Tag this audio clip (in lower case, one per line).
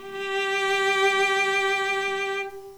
music
musical instrument
bowed string instrument